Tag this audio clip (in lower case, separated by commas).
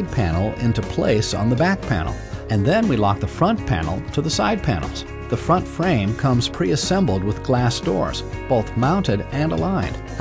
music, speech